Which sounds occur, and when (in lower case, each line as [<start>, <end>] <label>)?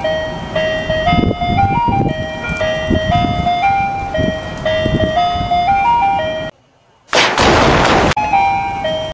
[4.53, 4.60] tick
[4.65, 6.38] wind noise (microphone)
[6.49, 7.11] mechanisms
[7.07, 8.12] explosion
[8.14, 9.11] ice cream truck
[8.15, 9.11] wind